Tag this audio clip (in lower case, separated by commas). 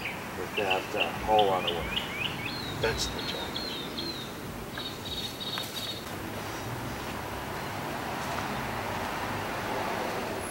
canoe